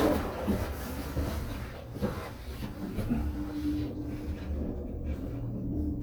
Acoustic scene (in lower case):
elevator